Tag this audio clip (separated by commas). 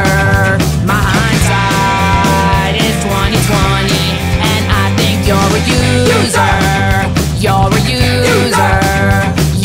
Exciting music, Music